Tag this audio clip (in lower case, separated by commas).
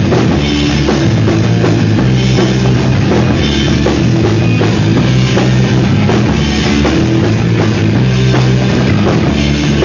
music, rock music